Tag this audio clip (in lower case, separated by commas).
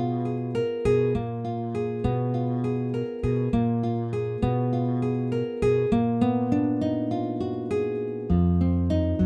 music, sad music